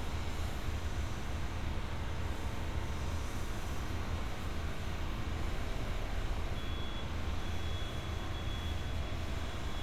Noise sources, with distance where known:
reverse beeper, far

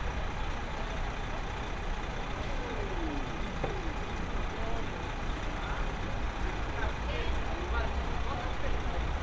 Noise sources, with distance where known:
large-sounding engine, near; person or small group talking, near

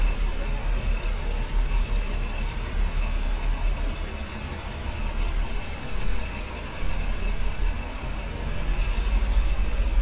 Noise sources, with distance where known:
large-sounding engine, near

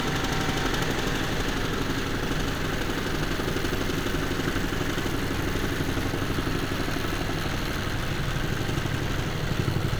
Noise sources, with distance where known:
large-sounding engine

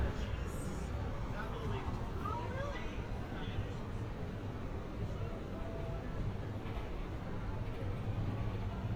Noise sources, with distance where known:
person or small group talking

